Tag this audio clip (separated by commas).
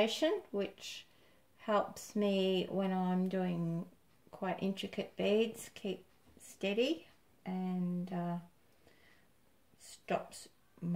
Speech